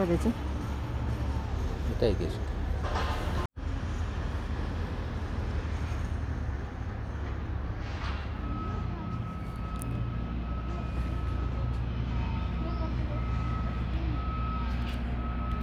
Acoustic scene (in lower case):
residential area